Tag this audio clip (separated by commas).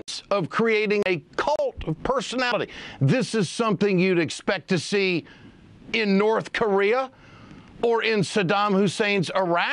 Speech, Male speech